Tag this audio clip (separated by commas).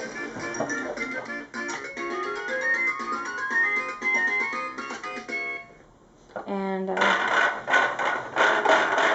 inside a small room, Speech, Music